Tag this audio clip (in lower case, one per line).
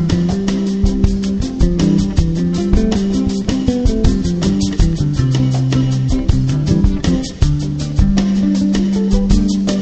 rhythm and blues
music